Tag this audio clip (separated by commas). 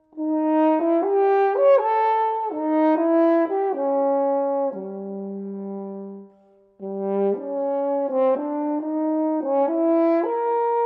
playing french horn